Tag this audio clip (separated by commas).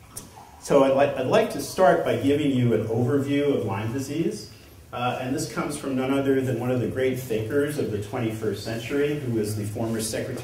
Speech